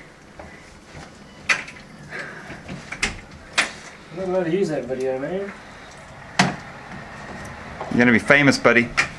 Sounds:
inside a large room or hall, speech

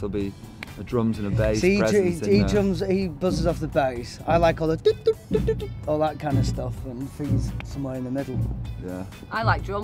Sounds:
music, speech

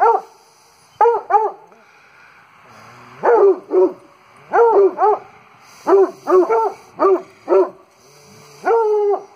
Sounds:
dog baying

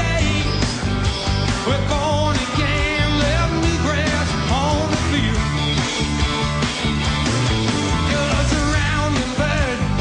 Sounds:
music, pop music

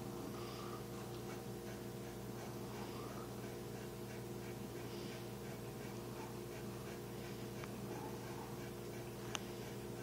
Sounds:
pets, animal

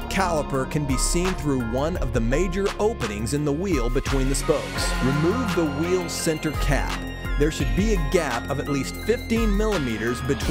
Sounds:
music, speech

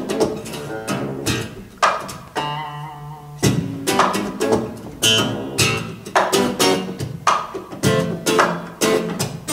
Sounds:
musical instrument, guitar, music, tapping (guitar technique), plucked string instrument

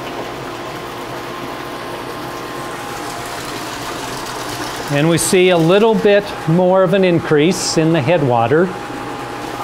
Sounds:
inside a large room or hall, speech, pump (liquid)

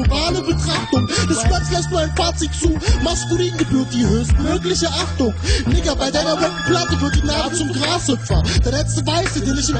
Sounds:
hip hop music, music

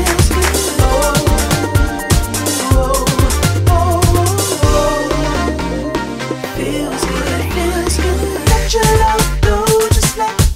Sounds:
music

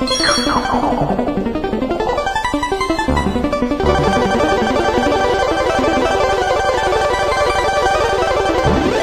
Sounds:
slot machine

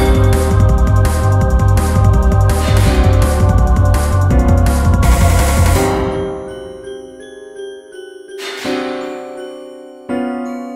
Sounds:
music

